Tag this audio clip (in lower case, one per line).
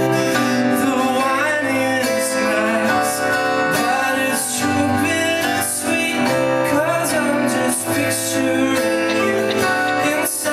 male singing
music